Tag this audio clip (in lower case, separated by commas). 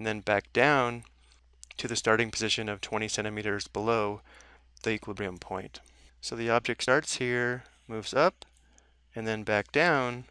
speech